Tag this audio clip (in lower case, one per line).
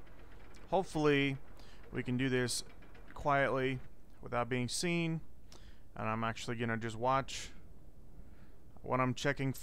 speech